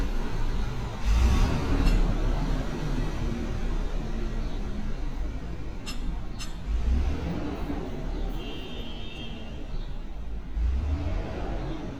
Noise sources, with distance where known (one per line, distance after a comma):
unidentified impact machinery, near